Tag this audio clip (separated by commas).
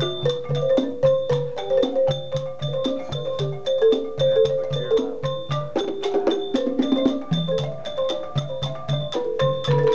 Percussion, Music, Traditional music, Speech